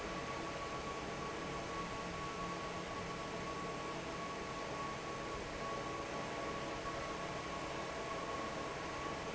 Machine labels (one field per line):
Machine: fan